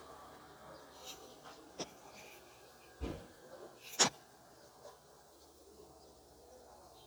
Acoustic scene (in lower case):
residential area